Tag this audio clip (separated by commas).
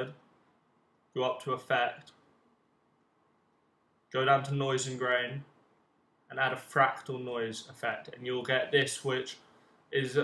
Speech